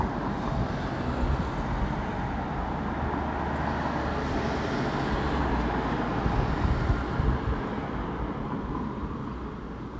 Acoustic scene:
residential area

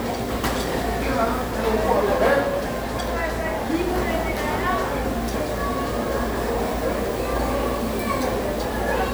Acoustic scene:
restaurant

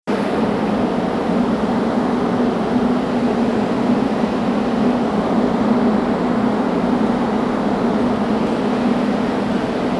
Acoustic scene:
subway station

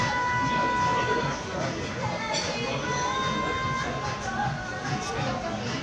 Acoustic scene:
crowded indoor space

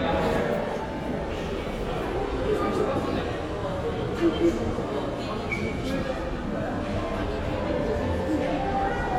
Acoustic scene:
crowded indoor space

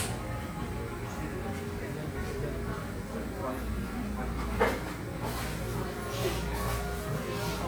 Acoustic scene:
cafe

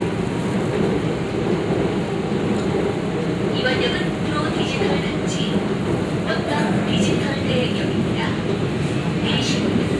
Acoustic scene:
subway train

